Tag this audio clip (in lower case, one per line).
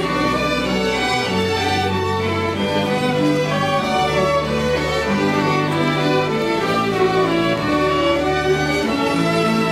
cello
musical instrument
violin
wedding music
classical music
string section
music
orchestra